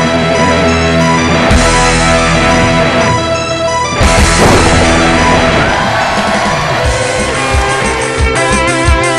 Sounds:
Plucked string instrument, Music, Strum, playing electric guitar, Electric guitar, Guitar, Musical instrument

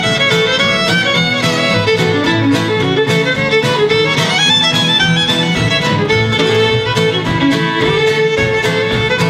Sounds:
Music, fiddle, Musical instrument

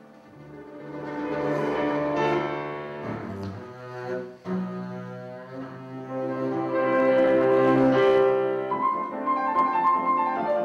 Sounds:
Classical music, Double bass, Music

